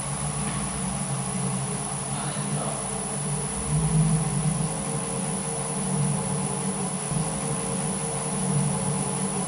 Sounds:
inside a small room, Speech

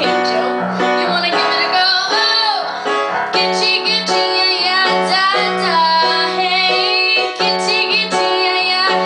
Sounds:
Music, Female singing

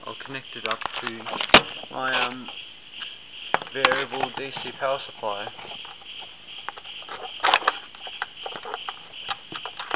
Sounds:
Speech, inside a small room

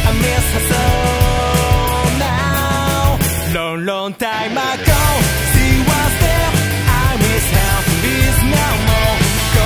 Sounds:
Grunge, Music

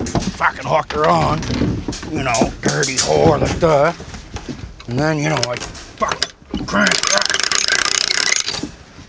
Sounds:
Speech, outside, urban or man-made

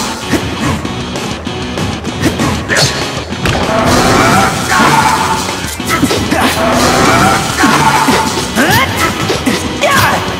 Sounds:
Music, crash

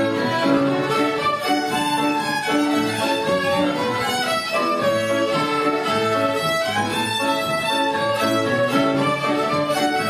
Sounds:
Musical instrument, Music, Violin

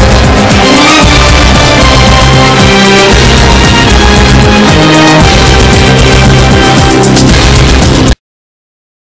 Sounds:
Music

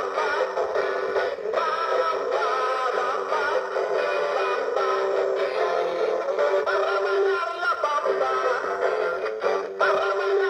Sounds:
Music, Singing

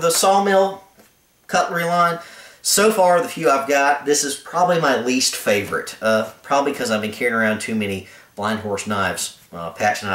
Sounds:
Speech

